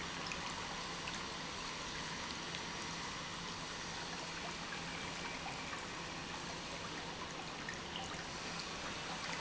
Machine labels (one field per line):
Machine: pump